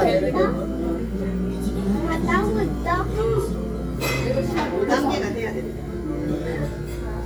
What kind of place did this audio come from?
crowded indoor space